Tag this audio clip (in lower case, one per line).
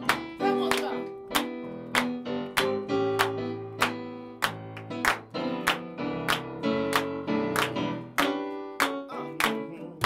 music
speech